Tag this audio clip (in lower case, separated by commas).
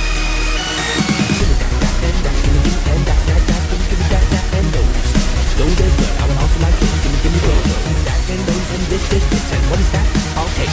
music, dubstep